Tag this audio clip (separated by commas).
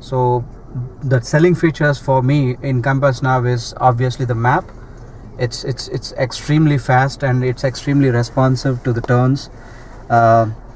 Speech